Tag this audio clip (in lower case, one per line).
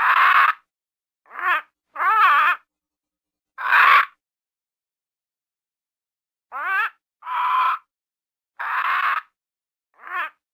bird squawking